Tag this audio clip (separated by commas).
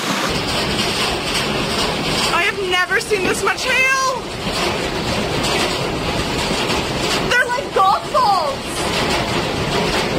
hail